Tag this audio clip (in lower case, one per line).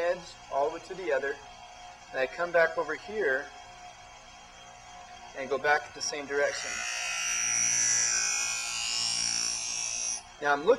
power tool
tools